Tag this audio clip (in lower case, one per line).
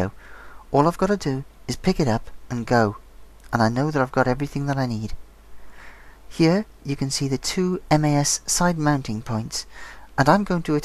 speech